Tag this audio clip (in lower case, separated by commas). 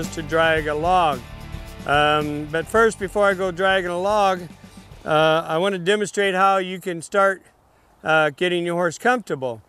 speech, music